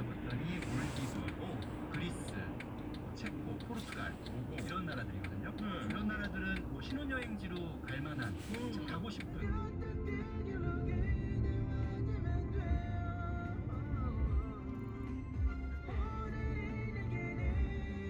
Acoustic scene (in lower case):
car